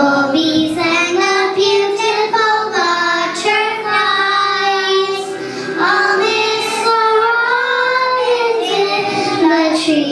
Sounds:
Music, Child singing

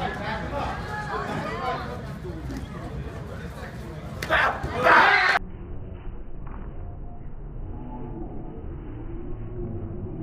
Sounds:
Speech

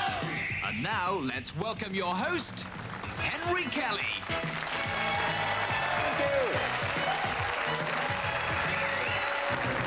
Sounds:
Music, Speech

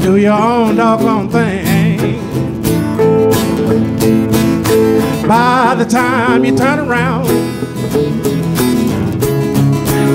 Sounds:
Acoustic guitar, Plucked string instrument, Musical instrument, Music, Guitar

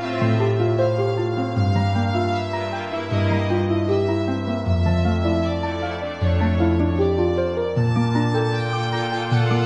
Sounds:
Music

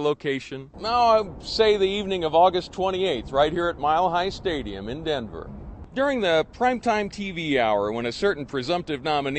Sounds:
Speech, man speaking

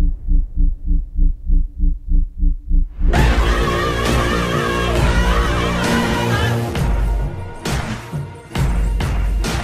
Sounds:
Music

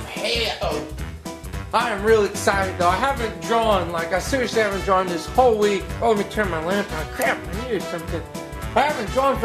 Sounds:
Music, Speech

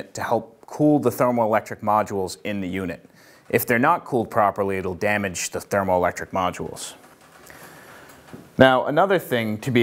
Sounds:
Speech

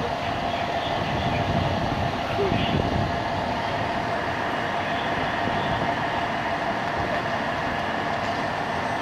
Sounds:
outside, urban or man-made

